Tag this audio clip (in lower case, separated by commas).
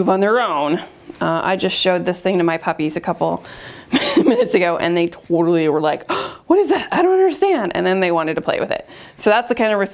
speech